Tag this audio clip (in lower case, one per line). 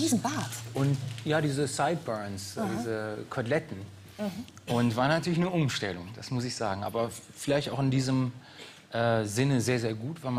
speech